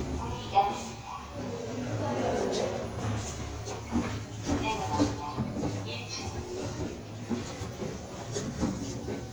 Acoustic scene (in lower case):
elevator